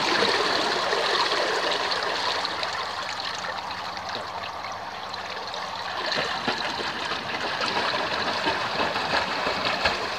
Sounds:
swimming

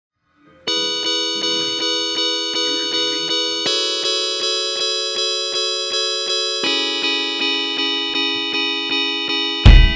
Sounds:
music

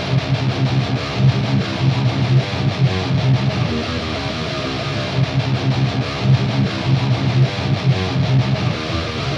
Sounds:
plucked string instrument
music

